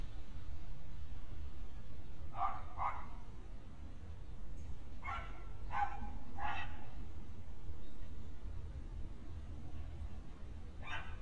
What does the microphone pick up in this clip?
dog barking or whining